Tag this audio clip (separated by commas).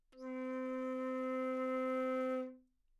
Music, Musical instrument, woodwind instrument